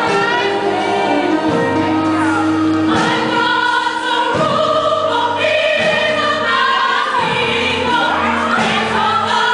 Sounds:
music
female singing
choir

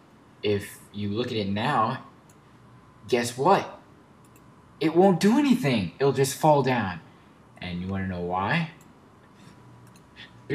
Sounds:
speech

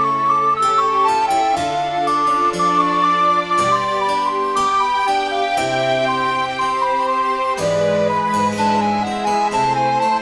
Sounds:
music

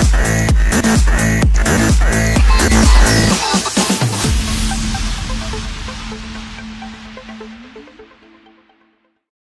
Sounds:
dance music
music

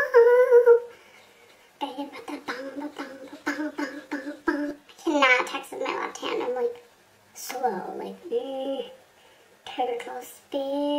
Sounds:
inside a small room
speech

